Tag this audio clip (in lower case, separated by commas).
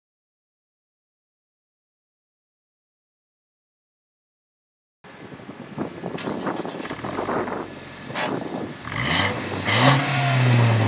silence, outside, urban or man-made, car, vehicle, medium engine (mid frequency)